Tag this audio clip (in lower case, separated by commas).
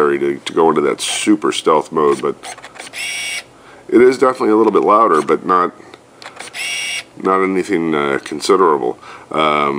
camera, speech